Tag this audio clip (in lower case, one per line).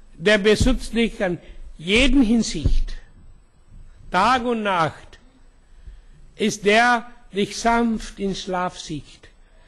speech